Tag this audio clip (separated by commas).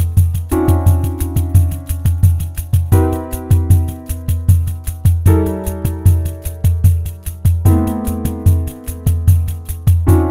playing tambourine